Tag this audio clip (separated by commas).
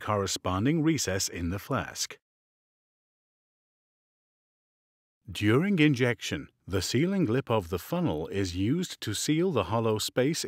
Speech